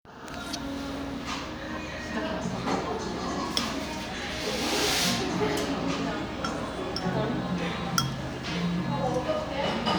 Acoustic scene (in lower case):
cafe